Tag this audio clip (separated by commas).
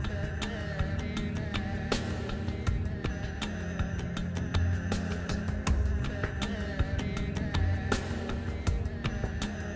Music